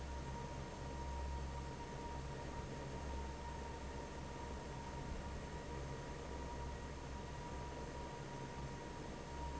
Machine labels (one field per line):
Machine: fan